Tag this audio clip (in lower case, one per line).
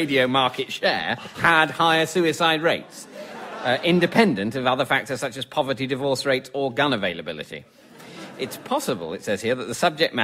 speech